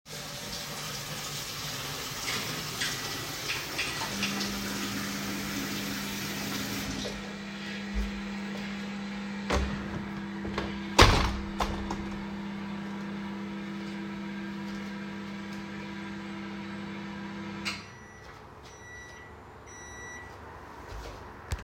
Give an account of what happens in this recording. While water tap was open I started microwave, closed water tap and opened window, after microwave finished